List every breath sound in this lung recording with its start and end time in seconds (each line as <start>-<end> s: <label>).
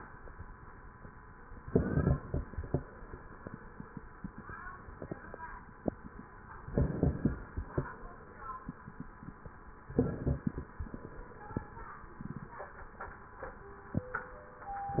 1.59-2.83 s: inhalation
1.59-2.83 s: crackles
6.67-7.92 s: inhalation
6.67-7.92 s: crackles
9.83-11.08 s: inhalation
9.83-11.08 s: crackles
14.86-15.00 s: inhalation
14.86-15.00 s: crackles